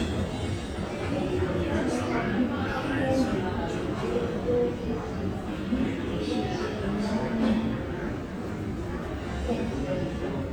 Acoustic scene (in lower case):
crowded indoor space